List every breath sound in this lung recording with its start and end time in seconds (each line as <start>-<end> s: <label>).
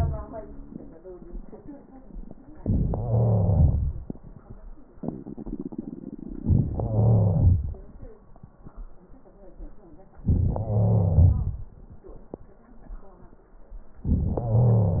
2.88-3.93 s: wheeze
6.62-7.78 s: wheeze
10.25-11.68 s: wheeze
14.07-15.00 s: wheeze